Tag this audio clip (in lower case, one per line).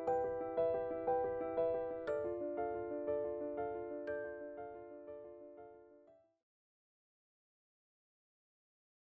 music